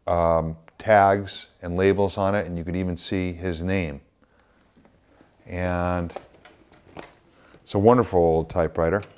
An adult male speaks and typewriter keys clack